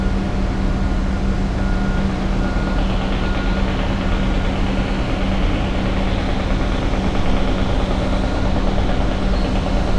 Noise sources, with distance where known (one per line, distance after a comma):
engine of unclear size, near
jackhammer